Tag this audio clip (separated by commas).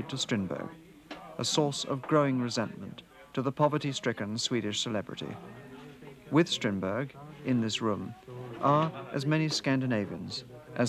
Speech